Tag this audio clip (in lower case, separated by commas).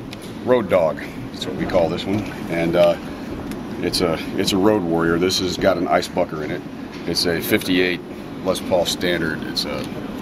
speech, inside a large room or hall